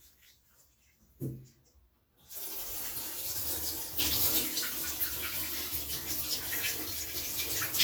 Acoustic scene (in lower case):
restroom